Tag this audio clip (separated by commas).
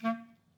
Musical instrument, Music, woodwind instrument